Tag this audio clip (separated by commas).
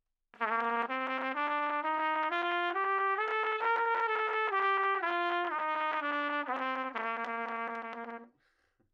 Music, Brass instrument, Musical instrument, Trumpet